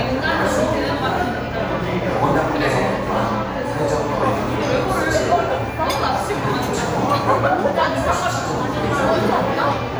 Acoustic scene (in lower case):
crowded indoor space